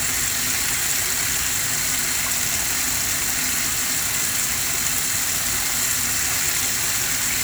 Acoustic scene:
kitchen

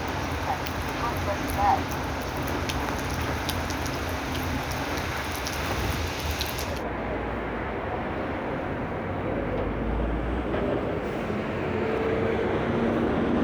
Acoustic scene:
street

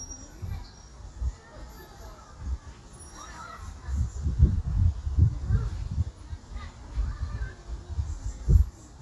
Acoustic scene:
park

